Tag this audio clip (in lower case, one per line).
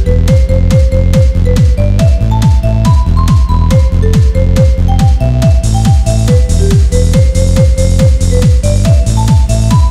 techno
music